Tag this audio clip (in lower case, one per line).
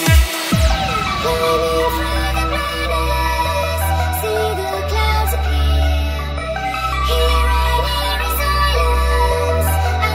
dubstep
electronic music
music
electronic dance music